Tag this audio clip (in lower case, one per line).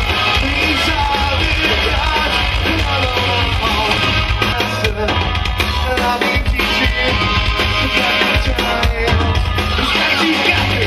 rock music
punk rock
singing
music